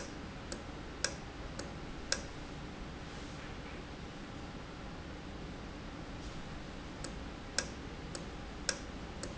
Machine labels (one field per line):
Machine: valve